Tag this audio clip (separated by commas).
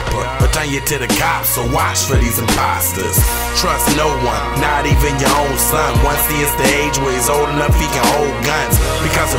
Music